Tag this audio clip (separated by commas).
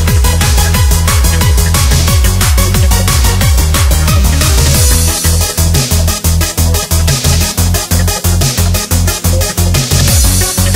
Music